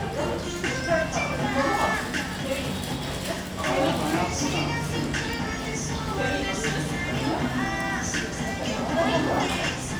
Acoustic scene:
restaurant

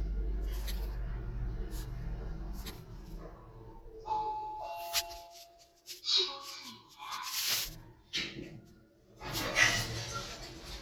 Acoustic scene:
elevator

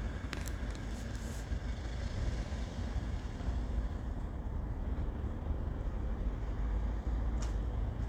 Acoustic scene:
residential area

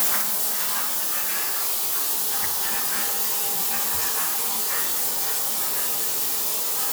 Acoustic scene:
restroom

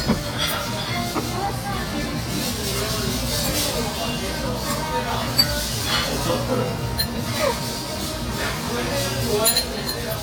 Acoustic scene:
restaurant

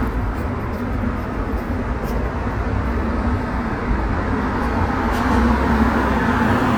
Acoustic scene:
street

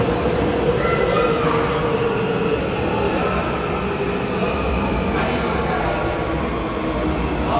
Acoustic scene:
subway station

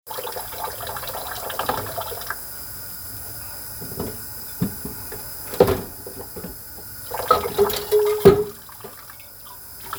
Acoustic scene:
kitchen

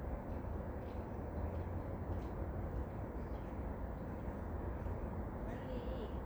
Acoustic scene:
park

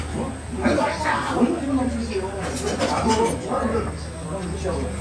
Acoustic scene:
restaurant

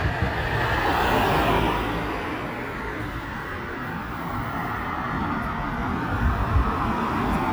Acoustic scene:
street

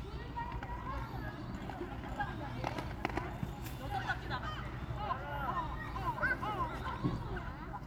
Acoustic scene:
park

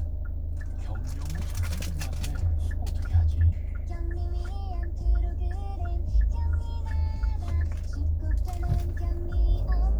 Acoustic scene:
car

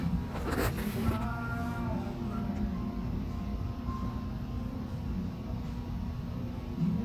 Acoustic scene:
cafe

